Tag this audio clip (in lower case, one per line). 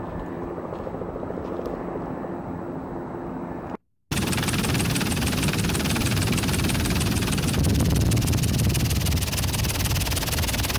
outside, rural or natural